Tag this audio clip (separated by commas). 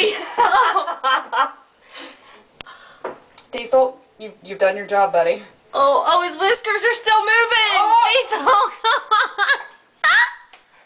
Speech, Breathing